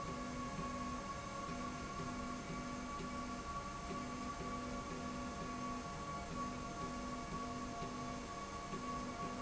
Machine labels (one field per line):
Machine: slide rail